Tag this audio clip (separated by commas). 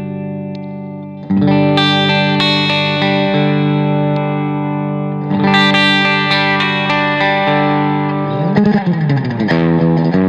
Distortion, Musical instrument, Music, Guitar, Plucked string instrument